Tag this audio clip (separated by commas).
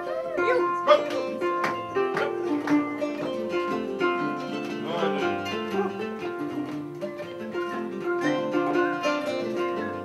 Harp, Music, Ukulele, Musical instrument, Plucked string instrument